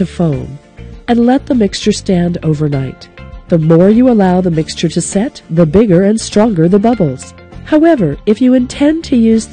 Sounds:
narration

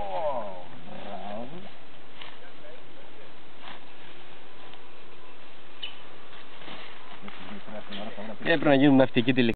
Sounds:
speech
vehicle

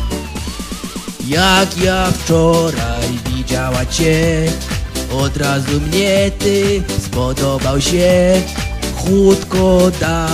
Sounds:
music

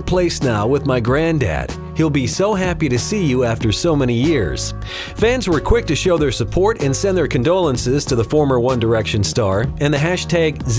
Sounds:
speech
music

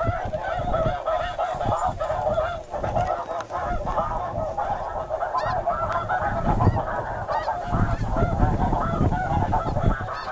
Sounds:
goose
bird

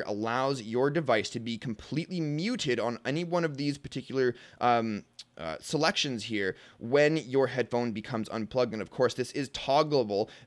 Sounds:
speech

